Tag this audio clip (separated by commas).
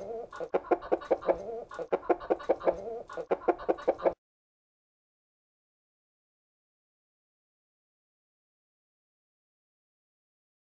chicken clucking